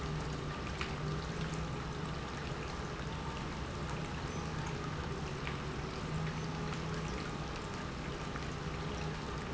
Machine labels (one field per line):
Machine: pump